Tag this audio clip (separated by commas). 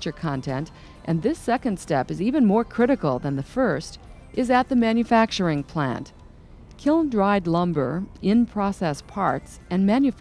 Speech